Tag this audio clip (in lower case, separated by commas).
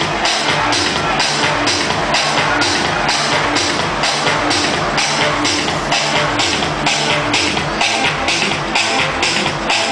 music, electronica